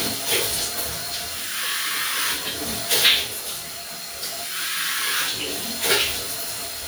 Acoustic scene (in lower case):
restroom